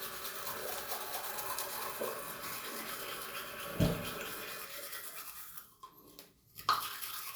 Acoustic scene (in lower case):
restroom